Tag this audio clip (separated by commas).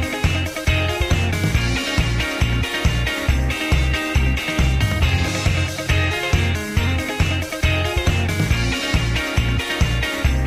Sound effect, Music